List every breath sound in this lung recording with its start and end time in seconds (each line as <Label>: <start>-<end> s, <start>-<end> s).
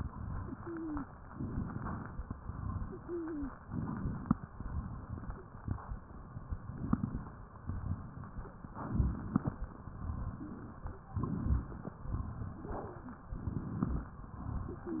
Inhalation: 1.33-2.24 s, 3.61-4.57 s, 6.51-7.36 s, 8.69-9.54 s, 11.14-11.97 s, 13.30-14.23 s
Exhalation: 2.37-3.23 s, 4.55-5.41 s, 7.68-8.54 s, 9.89-10.87 s, 12.22-13.24 s, 14.29-15.00 s
Wheeze: 0.30-1.10 s, 2.88-3.53 s
Crackles: 6.62-7.33 s, 8.92-9.63 s